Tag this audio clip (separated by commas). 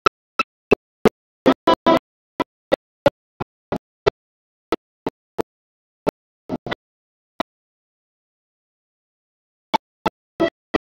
Musical instrument, Music, Violin